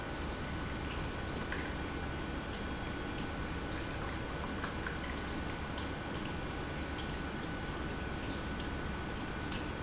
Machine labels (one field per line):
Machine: pump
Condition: normal